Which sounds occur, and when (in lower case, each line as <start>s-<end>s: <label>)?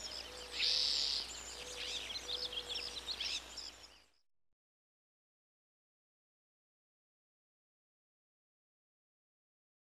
0.0s-4.2s: bird song
0.0s-4.3s: wind
0.3s-1.0s: hoot
1.5s-2.1s: hoot
2.2s-3.0s: hoot
4.2s-4.5s: beep